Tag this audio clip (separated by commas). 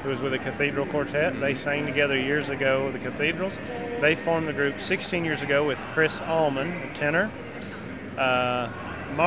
Speech